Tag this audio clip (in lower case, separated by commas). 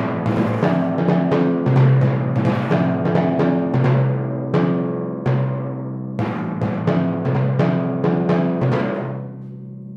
playing timpani